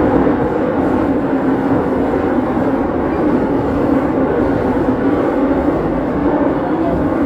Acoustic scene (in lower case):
subway train